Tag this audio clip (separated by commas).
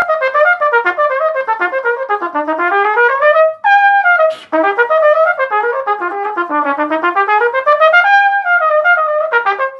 playing cornet